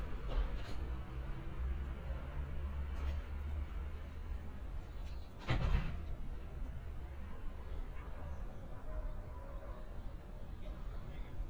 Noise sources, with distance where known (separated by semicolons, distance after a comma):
background noise